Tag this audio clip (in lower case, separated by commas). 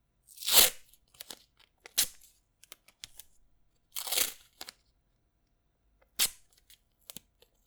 home sounds, packing tape, tearing